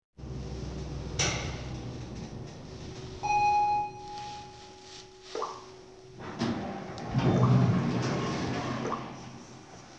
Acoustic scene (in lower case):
elevator